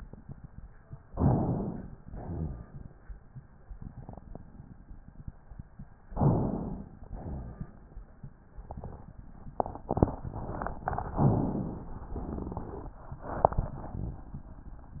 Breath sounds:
1.08-1.96 s: inhalation
2.03-2.90 s: exhalation
6.17-7.04 s: inhalation
7.10-7.86 s: exhalation
11.16-11.94 s: inhalation
12.18-12.96 s: exhalation

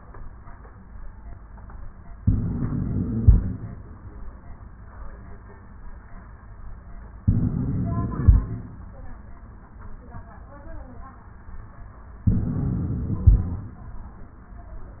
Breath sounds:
2.18-3.68 s: inhalation
2.18-3.68 s: wheeze
7.26-8.64 s: inhalation
7.26-8.64 s: wheeze
12.29-13.68 s: inhalation
12.29-13.68 s: wheeze

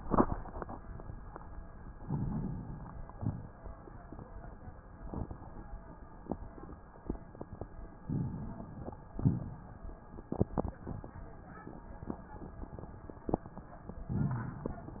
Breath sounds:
1.99-3.00 s: inhalation
1.99-3.00 s: crackles
3.07-3.74 s: exhalation
3.07-3.74 s: crackles
8.04-9.09 s: inhalation
8.04-9.09 s: crackles
9.13-9.77 s: exhalation
9.13-9.77 s: crackles
14.12-15.00 s: inhalation
14.12-15.00 s: crackles

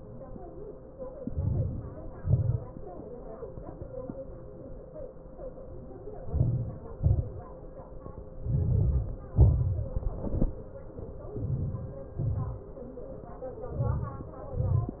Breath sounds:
1.02-2.03 s: inhalation
2.05-2.73 s: exhalation
6.01-7.06 s: inhalation
7.04-7.76 s: exhalation
8.31-9.19 s: inhalation
9.15-9.94 s: exhalation
11.20-12.14 s: inhalation
12.14-12.85 s: exhalation
13.41-14.32 s: inhalation
14.36-15.00 s: exhalation

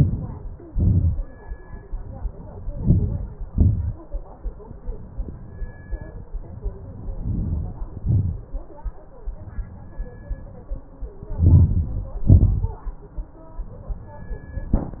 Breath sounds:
0.00-0.84 s: inhalation
0.81-1.48 s: exhalation
2.43-3.47 s: inhalation
3.47-4.18 s: exhalation
6.79-8.01 s: inhalation
8.01-8.73 s: exhalation
11.10-12.21 s: inhalation
12.28-13.08 s: exhalation

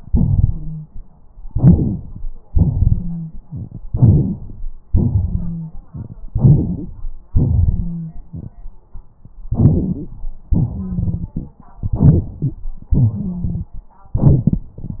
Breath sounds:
1.48-2.26 s: inhalation
1.48-2.26 s: wheeze
2.49-3.44 s: exhalation
2.80-3.34 s: wheeze
3.88-4.88 s: inhalation
3.88-4.88 s: crackles
4.92-5.92 s: exhalation
5.21-5.73 s: wheeze
6.29-7.23 s: inhalation
7.31-8.57 s: exhalation
7.55-8.14 s: wheeze
9.54-10.08 s: rhonchi
9.54-10.15 s: inhalation
10.52-11.27 s: wheeze
10.54-11.66 s: exhalation
11.84-12.60 s: inhalation
12.41-12.55 s: wheeze
12.91-13.66 s: wheeze
12.93-13.86 s: exhalation

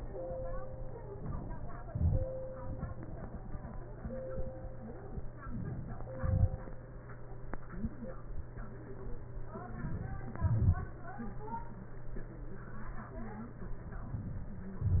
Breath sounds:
1.92-2.36 s: exhalation
6.18-6.63 s: exhalation
9.55-10.47 s: inhalation
10.37-10.96 s: exhalation

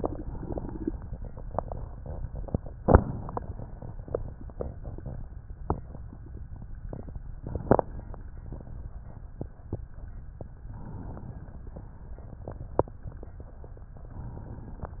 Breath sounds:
0.00-0.93 s: inhalation
10.58-11.74 s: inhalation

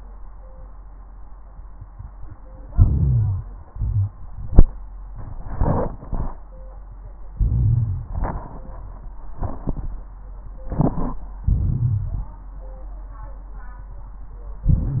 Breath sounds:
2.69-3.61 s: inhalation
3.71-4.12 s: exhalation
7.40-8.09 s: inhalation
11.49-12.33 s: inhalation
14.70-15.00 s: inhalation

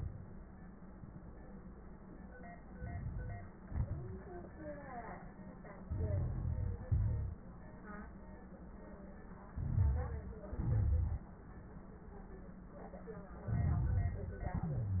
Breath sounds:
2.59-3.61 s: crackles
2.61-3.63 s: inhalation
3.63-4.55 s: exhalation
3.63-4.55 s: crackles
5.86-6.88 s: inhalation
5.86-6.88 s: crackles
6.90-7.40 s: exhalation
6.90-7.40 s: crackles
9.52-10.45 s: inhalation
9.52-10.45 s: crackles
10.46-11.29 s: exhalation
10.46-11.29 s: crackles
13.38-14.41 s: inhalation
13.38-14.41 s: crackles
14.41-15.00 s: exhalation
14.64-15.00 s: wheeze

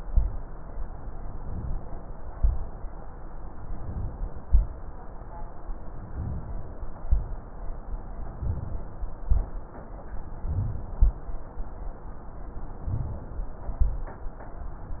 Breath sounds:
1.35-2.03 s: inhalation
2.34-2.81 s: exhalation
3.72-4.44 s: inhalation
4.46-4.93 s: exhalation
6.00-6.72 s: inhalation
7.06-7.53 s: exhalation
8.26-8.97 s: inhalation
9.26-9.73 s: exhalation
10.25-10.97 s: inhalation
11.01-11.48 s: exhalation
12.87-13.59 s: inhalation
13.79-14.27 s: exhalation

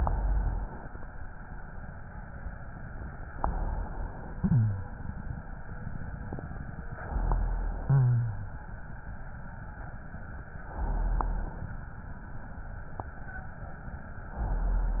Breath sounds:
0.00-0.92 s: inhalation
3.32-4.39 s: inhalation
4.39-4.90 s: wheeze
4.39-5.50 s: exhalation
6.92-7.85 s: inhalation
7.87-8.64 s: wheeze
7.87-8.79 s: exhalation
10.66-11.74 s: inhalation
14.38-15.00 s: inhalation

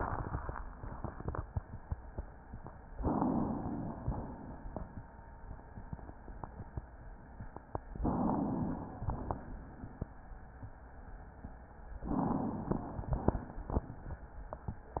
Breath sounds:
2.99-3.84 s: inhalation
3.84-5.01 s: exhalation
3.84-5.01 s: crackles
8.01-9.01 s: inhalation
9.01-10.18 s: exhalation
9.01-10.18 s: crackles
12.05-13.00 s: crackles
12.08-13.02 s: inhalation
13.02-14.25 s: exhalation
13.02-14.25 s: crackles

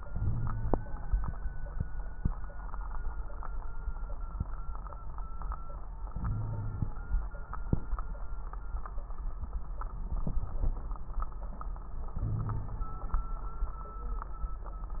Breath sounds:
0.05-1.24 s: inhalation
0.13-0.86 s: wheeze
6.11-7.05 s: inhalation
6.24-6.96 s: wheeze
12.18-12.97 s: inhalation
12.18-12.97 s: wheeze

